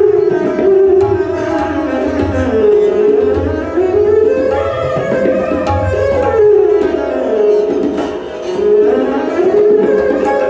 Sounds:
Classical music, Tabla, Musical instrument, Music

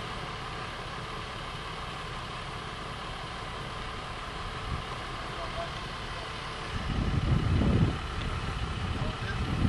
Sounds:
Speech

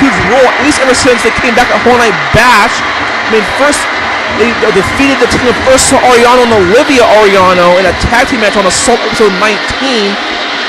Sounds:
Speech

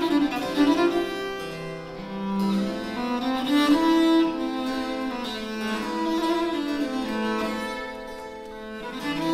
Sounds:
Bowed string instrument, Music

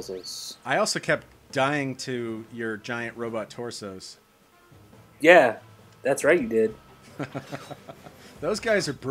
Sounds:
Music, Speech

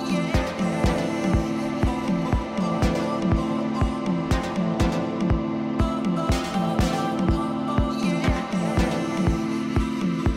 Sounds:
Music

